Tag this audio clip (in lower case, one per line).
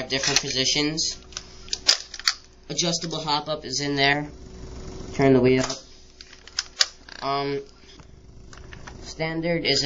speech